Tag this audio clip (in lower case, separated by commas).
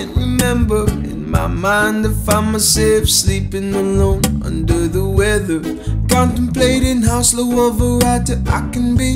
soul music, music, sad music